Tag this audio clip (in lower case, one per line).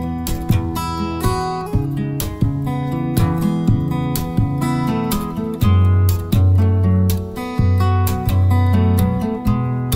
guitar
music
acoustic guitar
musical instrument